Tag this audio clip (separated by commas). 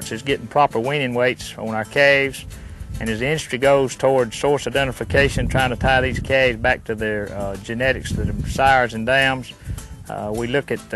Speech, Music